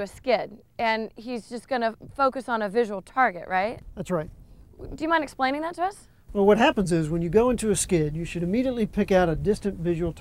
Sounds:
speech

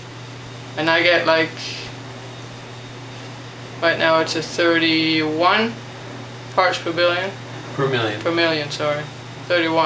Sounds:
speech

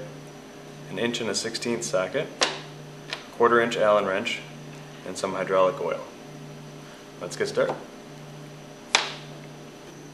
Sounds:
speech

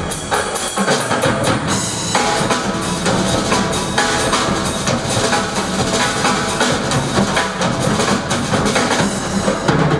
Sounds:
music, inside a small room

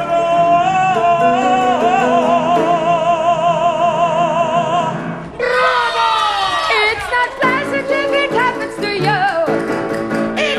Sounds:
opera, singing, music

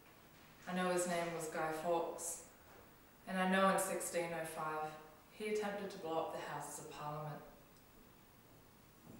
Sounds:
speech, narration

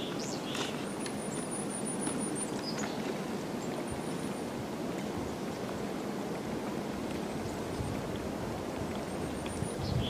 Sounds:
woodpecker pecking tree

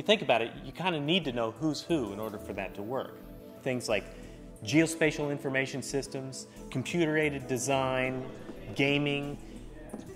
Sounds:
speech, music

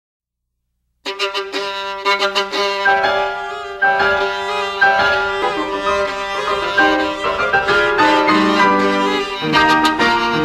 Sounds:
fiddle, classical music, musical instrument, music, bowed string instrument

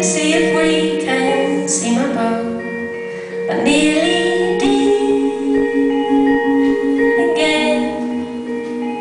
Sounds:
singing, vibraphone, music, marimba, musical instrument

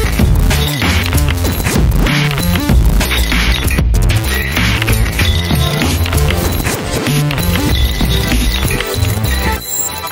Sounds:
music, dance music, exciting music

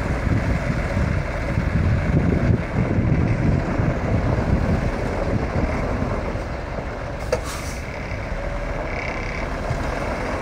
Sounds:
vehicle, truck

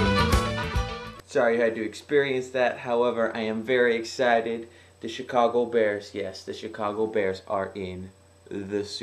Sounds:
speech, music

